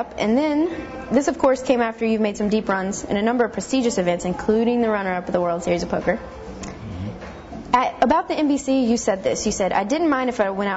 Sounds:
speech, music

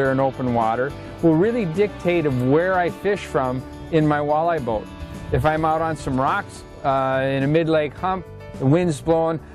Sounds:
music, speech

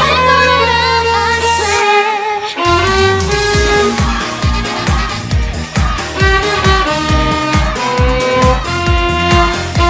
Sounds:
musical instrument, music, fiddle

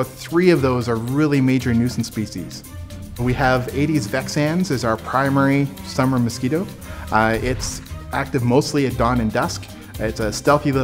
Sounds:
mosquito buzzing

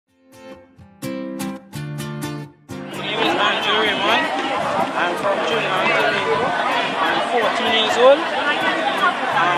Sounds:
chatter, speech, outside, rural or natural, music

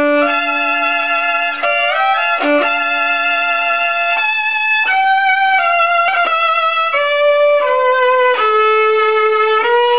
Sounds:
musical instrument, music, violin

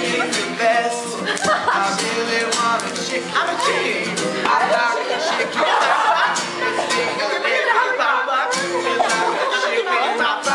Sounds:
music, speech

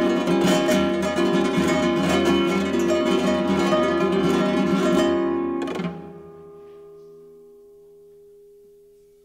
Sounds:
pizzicato

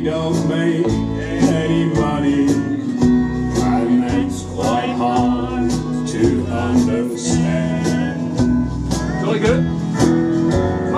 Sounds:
male singing, music, speech

